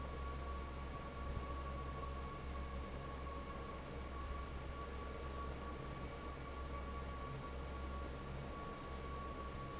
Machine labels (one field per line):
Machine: fan